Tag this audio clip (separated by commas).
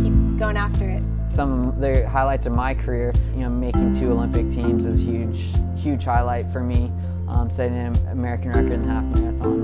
Music, Speech, inside a small room